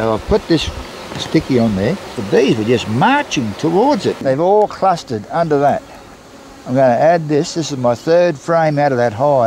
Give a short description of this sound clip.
A man is speaking while bees are buzzing in the background